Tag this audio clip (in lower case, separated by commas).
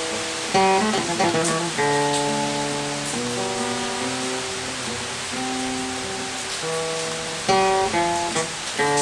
guitar, plucked string instrument, playing acoustic guitar, musical instrument, acoustic guitar, music